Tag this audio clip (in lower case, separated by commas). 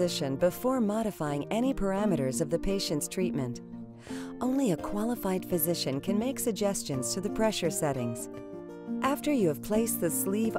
music, speech